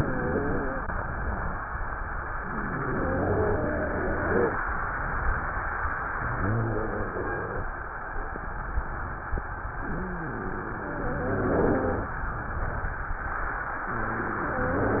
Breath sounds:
Inhalation: 2.45-4.61 s, 6.13-7.70 s, 9.79-12.22 s, 13.87-15.00 s
Wheeze: 0.00-0.89 s, 2.45-4.61 s, 6.13-7.70 s, 9.79-12.22 s, 13.87-15.00 s

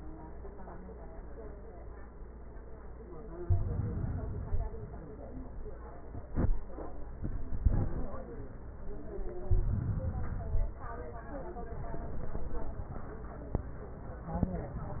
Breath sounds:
Inhalation: 3.38-4.86 s, 9.43-10.82 s

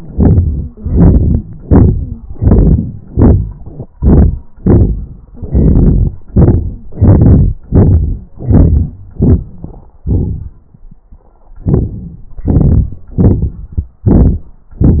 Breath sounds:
Inhalation: 0.07-0.74 s, 1.48-2.23 s, 3.03-3.93 s, 4.51-5.25 s, 6.27-6.84 s, 7.67-8.34 s, 9.16-9.93 s, 11.26-12.30 s, 13.15-13.99 s
Exhalation: 0.75-1.48 s, 2.24-3.03 s, 3.94-4.53 s, 5.26-6.25 s, 6.85-7.63 s, 8.38-9.15 s, 12.29-13.13 s, 14.00-14.70 s
Wheeze: 1.89-2.23 s
Crackles: 0.07-0.74 s, 0.75-1.48 s, 2.21-3.00 s, 3.03-3.93 s, 5.26-6.25 s, 6.27-6.84 s, 6.85-7.63 s, 7.67-8.34 s, 8.38-9.15 s, 9.16-9.93 s, 9.94-11.10 s, 11.26-12.30 s, 12.32-13.13 s, 13.15-13.99 s

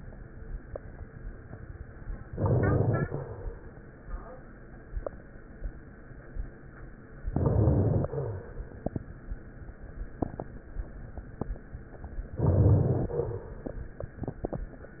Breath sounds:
Inhalation: 2.31-3.21 s, 7.25-8.14 s, 12.33-13.23 s
Crackles: 2.31-3.21 s, 7.25-8.14 s, 12.33-13.23 s

